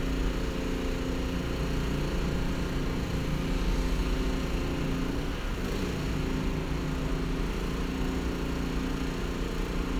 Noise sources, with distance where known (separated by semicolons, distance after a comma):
unidentified impact machinery